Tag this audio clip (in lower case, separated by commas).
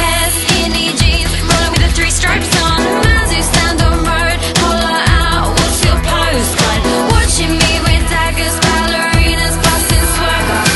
harpsichord, music